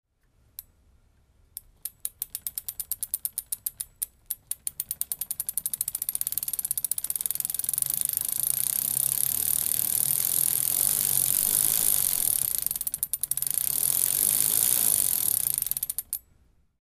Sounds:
vehicle, bicycle

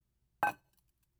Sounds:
dishes, pots and pans, domestic sounds

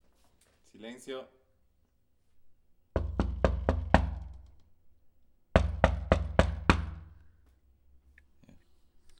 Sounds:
domestic sounds, door, wood, knock

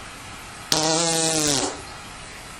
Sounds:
fart

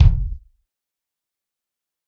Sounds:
bass drum, percussion, drum, music, musical instrument

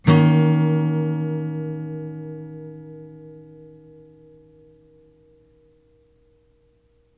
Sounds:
acoustic guitar, plucked string instrument, strum, music, guitar, musical instrument

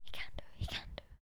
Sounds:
human voice, whispering

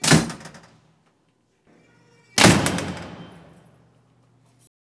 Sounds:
door, home sounds, slam, rattle, squeak

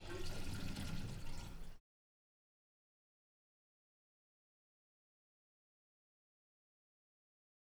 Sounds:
domestic sounds, water, sink (filling or washing)

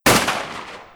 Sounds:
explosion, gunshot

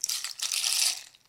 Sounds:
musical instrument, percussion, rattle, rattle (instrument), music

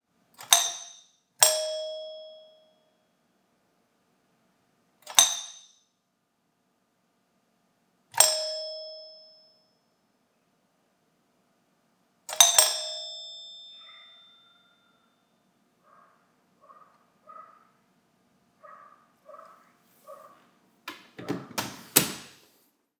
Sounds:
home sounds, doorbell, alarm, door

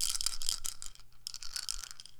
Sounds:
rattle, musical instrument, music, rattle (instrument), percussion

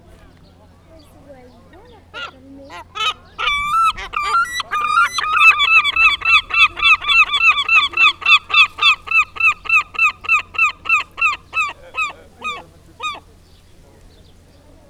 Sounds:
wild animals, animal, bird

